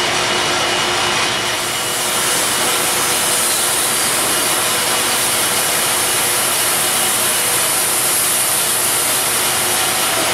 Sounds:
hiss, power tool, steam, tools

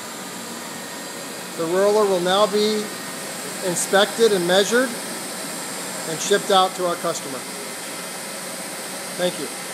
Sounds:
speech, inside a small room

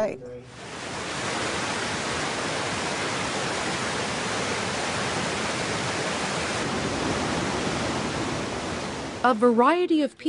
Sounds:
waterfall burbling, water, waterfall

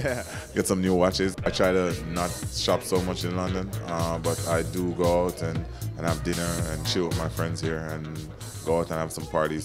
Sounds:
music, speech

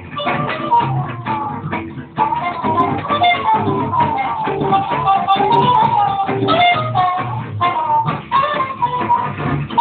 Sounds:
music, musical instrument, violin

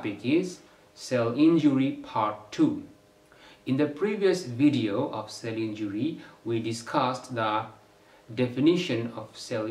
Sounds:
speech

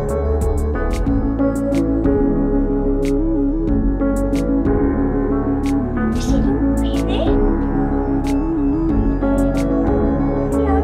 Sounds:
music

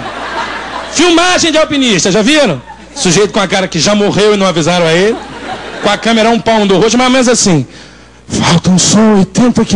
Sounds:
speech

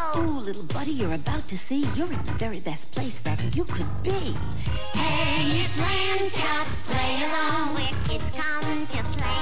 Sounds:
music

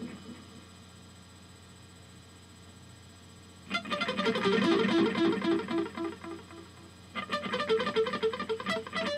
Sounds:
music, echo

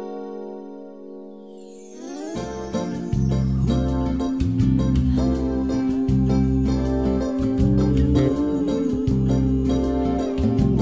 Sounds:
music, bass guitar

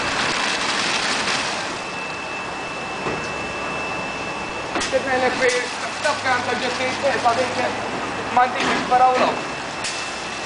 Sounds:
speech

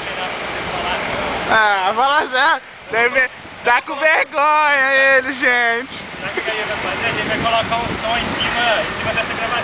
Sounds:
speech

